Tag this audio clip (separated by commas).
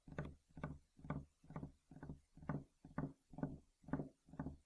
Tap